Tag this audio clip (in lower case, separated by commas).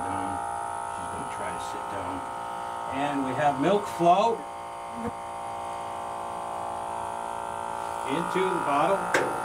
speech, electric razor